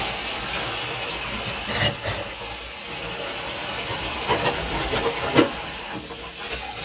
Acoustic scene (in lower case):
kitchen